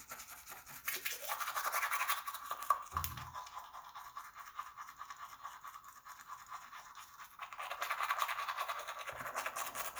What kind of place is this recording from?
restroom